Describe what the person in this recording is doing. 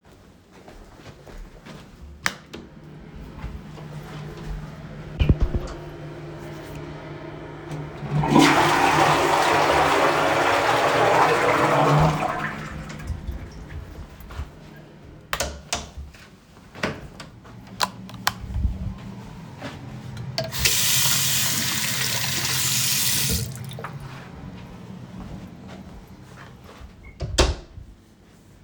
I turned on the light and entered the toilet. The exhaust fan started humming in the background. I flushed the toilet and turned off the light and closed the door. I then walked to the bathroom and opened the door and turned on the light and ran water in the sink for a few seconds and walked out and closed the door.